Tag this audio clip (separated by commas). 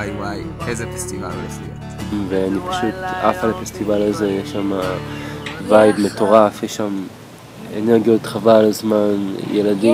Music, Speech